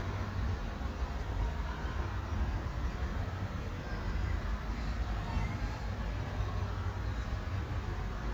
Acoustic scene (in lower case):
residential area